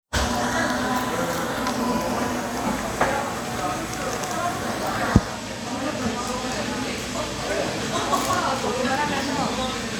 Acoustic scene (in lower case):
cafe